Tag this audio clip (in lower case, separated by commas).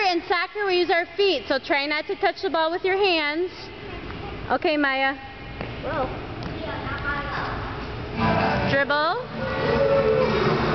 speech, music